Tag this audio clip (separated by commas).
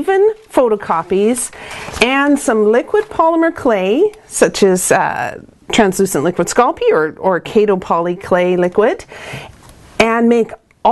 Speech